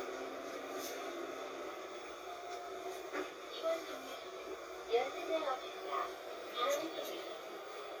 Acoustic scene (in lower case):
bus